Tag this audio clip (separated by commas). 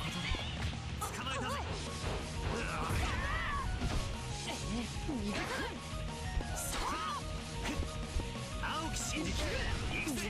Background music, Soundtrack music, Speech, Music